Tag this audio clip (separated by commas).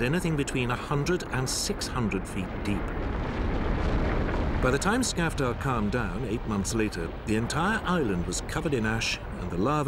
Music, Eruption, Speech